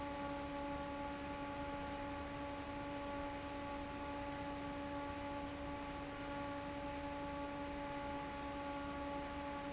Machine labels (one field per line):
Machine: fan